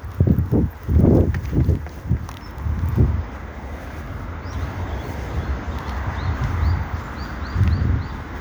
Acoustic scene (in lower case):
park